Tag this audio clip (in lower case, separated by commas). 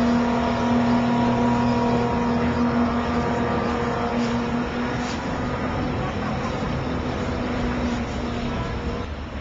boat, motorboat